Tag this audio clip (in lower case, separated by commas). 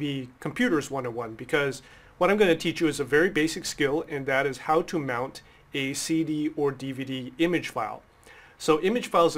speech